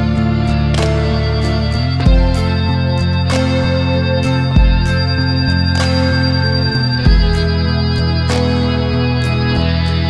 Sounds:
Music

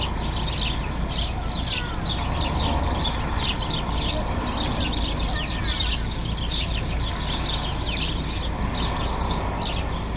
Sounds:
warbler chirping

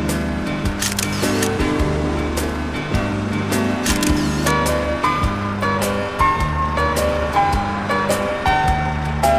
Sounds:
Music

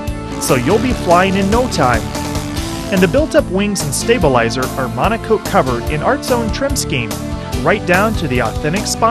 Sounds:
Music, Speech

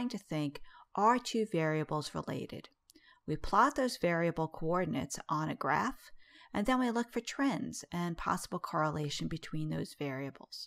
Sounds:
Speech

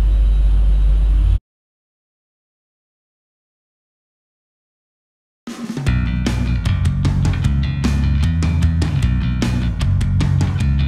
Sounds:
Music

